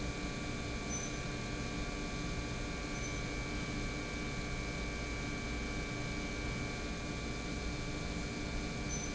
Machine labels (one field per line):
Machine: pump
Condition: normal